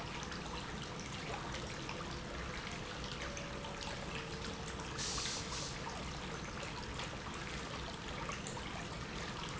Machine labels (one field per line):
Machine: pump